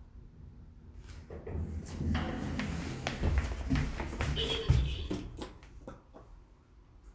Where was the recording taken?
in an elevator